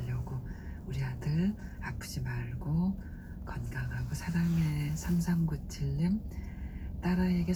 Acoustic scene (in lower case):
car